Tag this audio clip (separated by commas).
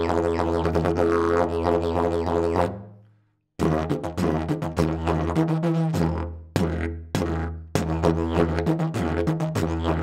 playing didgeridoo